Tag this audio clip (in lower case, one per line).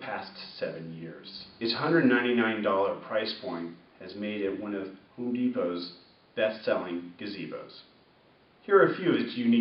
speech